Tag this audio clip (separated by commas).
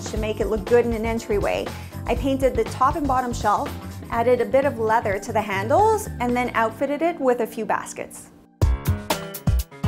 Speech, Music